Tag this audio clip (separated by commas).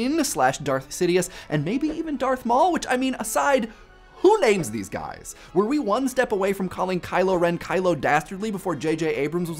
Speech, Music, inside a small room